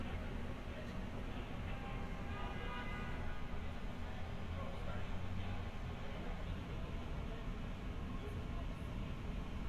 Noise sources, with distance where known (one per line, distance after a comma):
car horn, far
unidentified human voice